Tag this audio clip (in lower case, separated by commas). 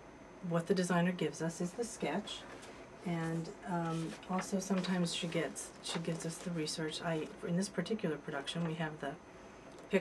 speech